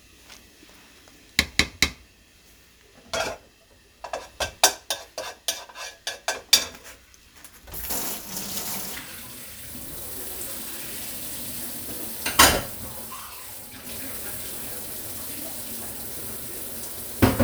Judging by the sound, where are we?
in a kitchen